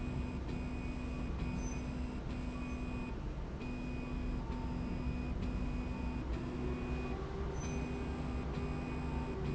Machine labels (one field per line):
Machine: slide rail